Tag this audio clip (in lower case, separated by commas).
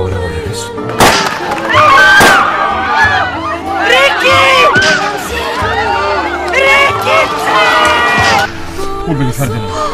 music, speech